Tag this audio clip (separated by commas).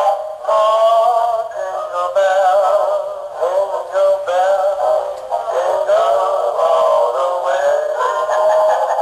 Synthetic singing